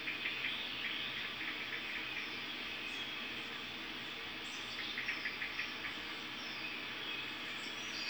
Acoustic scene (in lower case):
park